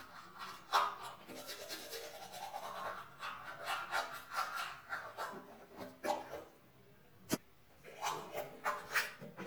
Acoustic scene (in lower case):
restroom